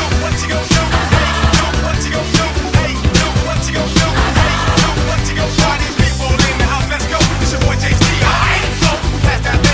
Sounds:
music

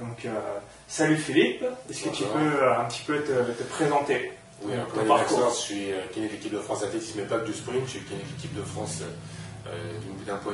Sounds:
inside a small room, speech

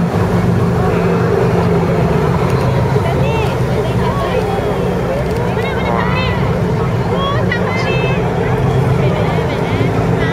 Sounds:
vehicle, speedboat, speech

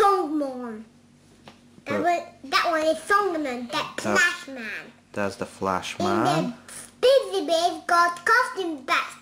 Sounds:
child speech, inside a small room, speech

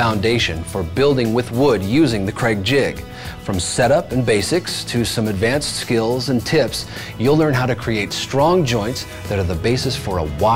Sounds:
music, speech

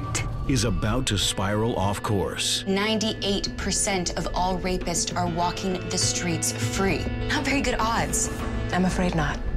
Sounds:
speech, music

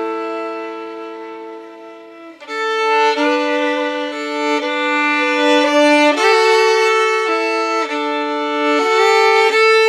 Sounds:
music, musical instrument, violin

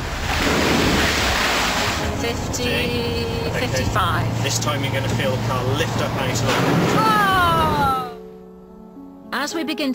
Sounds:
tire squeal, music, speech, car, vehicle

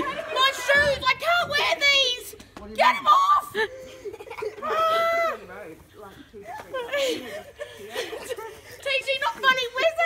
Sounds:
speech

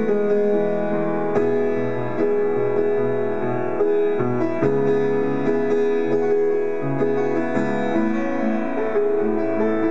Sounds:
music

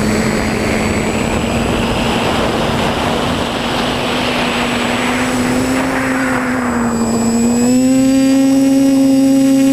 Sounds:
outside, urban or man-made, aircraft

